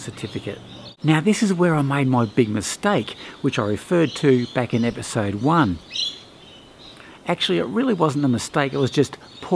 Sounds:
Speech, Environmental noise

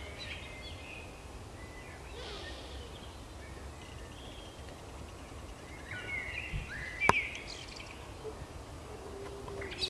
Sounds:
Animal, Bird

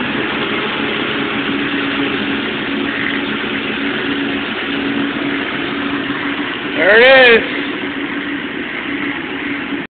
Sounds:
Speech, Vehicle

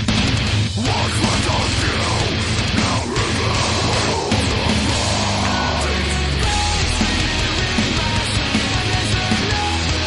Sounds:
Music

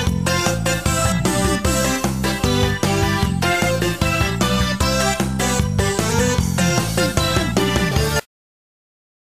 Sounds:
Soundtrack music, Music, Theme music

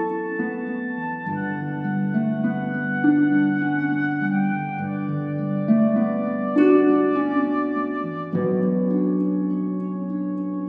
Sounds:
Music

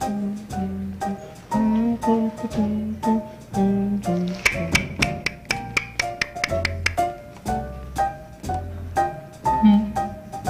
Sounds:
Music

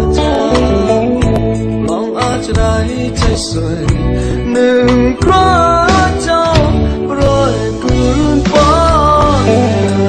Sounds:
Music

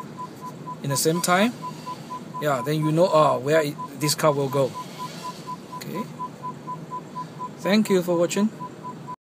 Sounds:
Speech

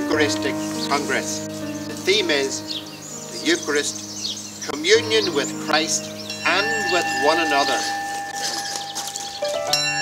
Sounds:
Speech, Music

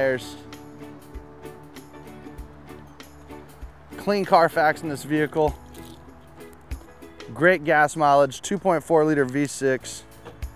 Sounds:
Music, Speech

